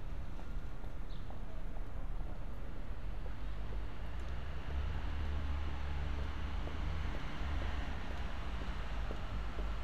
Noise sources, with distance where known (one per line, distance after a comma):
medium-sounding engine
unidentified human voice